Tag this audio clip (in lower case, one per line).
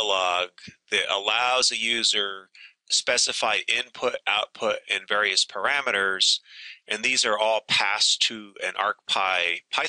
speech